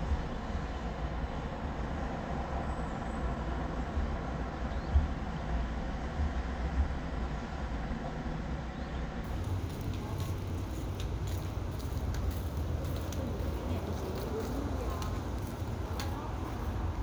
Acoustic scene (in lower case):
residential area